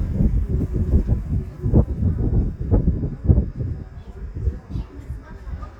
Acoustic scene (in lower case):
residential area